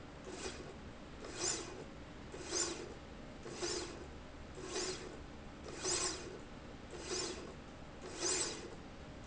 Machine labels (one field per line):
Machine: slide rail